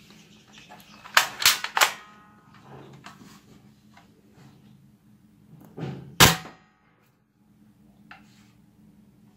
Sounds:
cap gun shooting

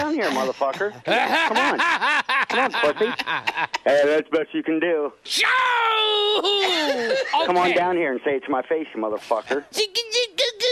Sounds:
Speech

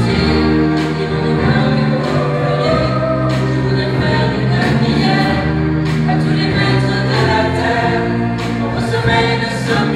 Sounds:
Singing, Music, Choir

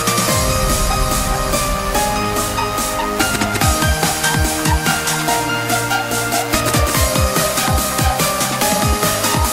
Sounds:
Electronic music, Electronica, Music

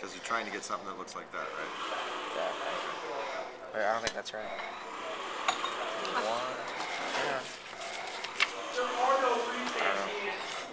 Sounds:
Speech

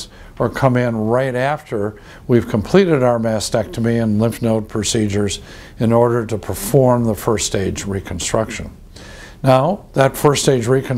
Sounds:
Speech

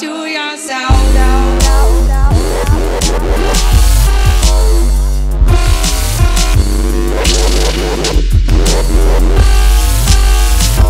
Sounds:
Dubstep, Singing, Music

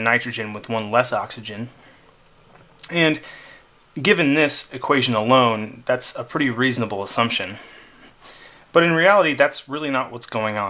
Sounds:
Speech

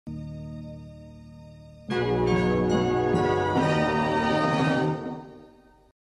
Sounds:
Music

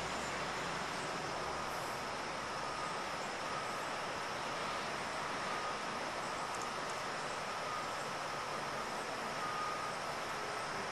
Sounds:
White noise

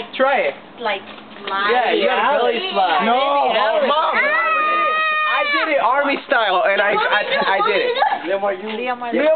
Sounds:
Speech

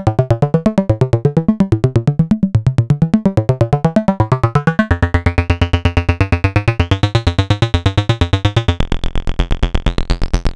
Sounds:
playing synthesizer

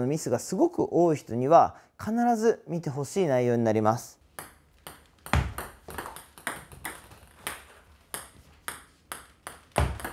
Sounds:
playing table tennis

